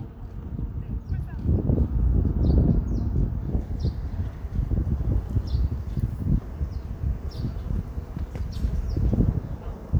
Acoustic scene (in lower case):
park